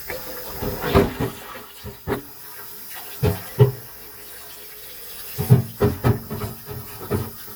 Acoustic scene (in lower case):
kitchen